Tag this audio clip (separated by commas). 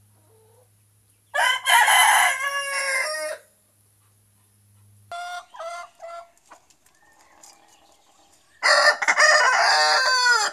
chicken crowing